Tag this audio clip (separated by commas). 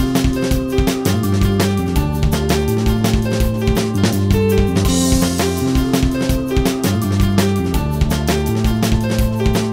Music